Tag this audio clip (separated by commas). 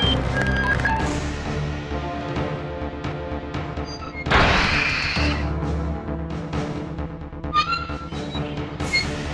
Fusillade